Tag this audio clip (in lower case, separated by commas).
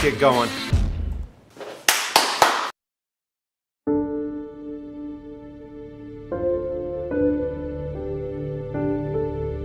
speech, music